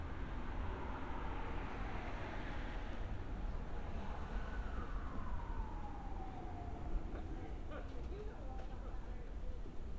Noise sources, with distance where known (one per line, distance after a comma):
siren, far
unidentified human voice, near